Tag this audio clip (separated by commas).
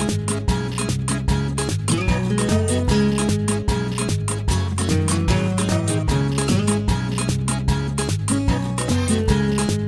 Music